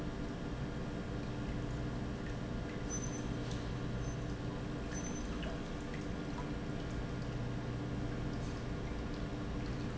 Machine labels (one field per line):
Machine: pump